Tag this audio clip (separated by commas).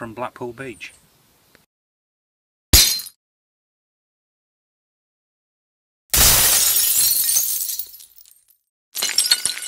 Speech, Shatter